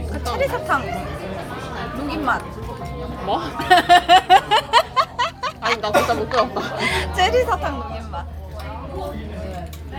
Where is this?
in a crowded indoor space